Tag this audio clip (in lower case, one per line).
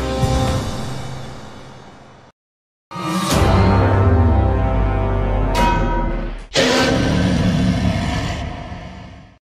music